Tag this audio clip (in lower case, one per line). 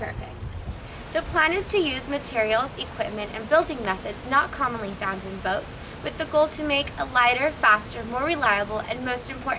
speech